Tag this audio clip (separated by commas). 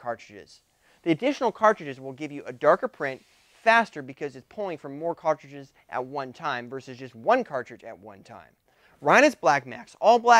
Speech